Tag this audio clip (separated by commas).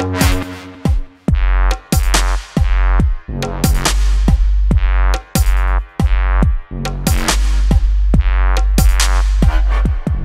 Music, Electronica